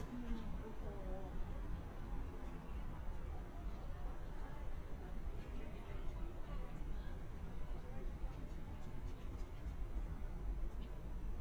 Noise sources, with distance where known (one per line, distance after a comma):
person or small group talking, far